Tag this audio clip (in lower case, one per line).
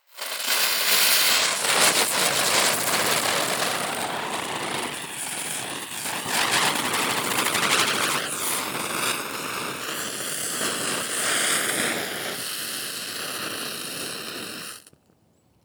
fire